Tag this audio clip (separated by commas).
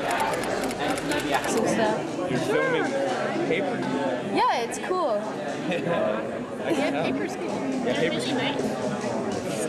Speech